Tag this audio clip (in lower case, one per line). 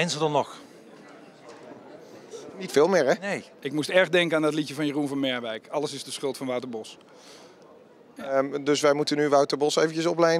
speech